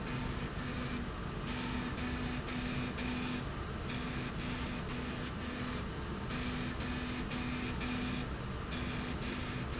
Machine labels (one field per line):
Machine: slide rail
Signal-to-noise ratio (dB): -6 dB